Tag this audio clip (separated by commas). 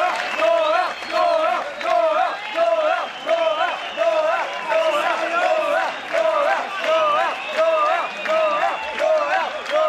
Speech